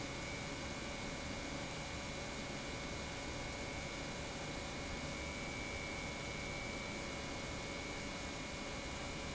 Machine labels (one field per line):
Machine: pump